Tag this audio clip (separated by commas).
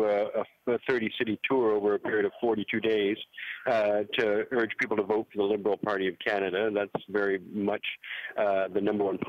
Speech